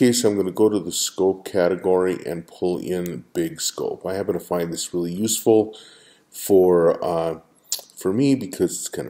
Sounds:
Speech

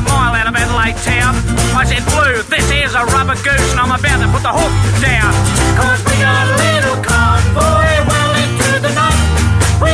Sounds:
Music

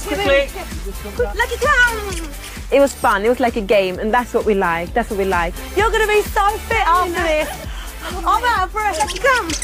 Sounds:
Domestic animals, Music, Dog, Animal, Speech

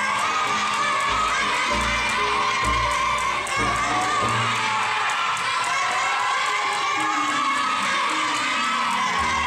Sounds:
rope skipping

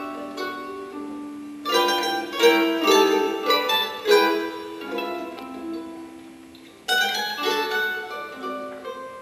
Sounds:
Musical instrument, Guitar, Strum, Acoustic guitar, Music

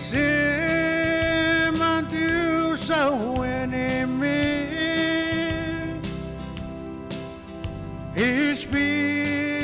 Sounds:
Music

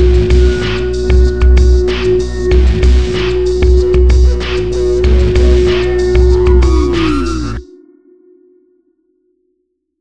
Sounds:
Music

